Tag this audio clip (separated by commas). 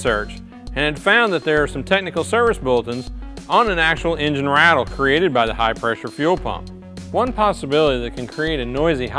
Music, Speech